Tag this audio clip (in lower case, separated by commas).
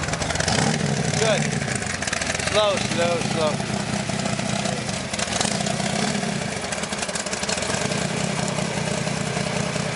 vehicle, outside, rural or natural, car, speech